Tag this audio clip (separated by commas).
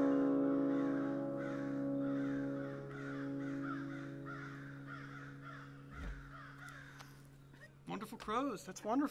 crow cawing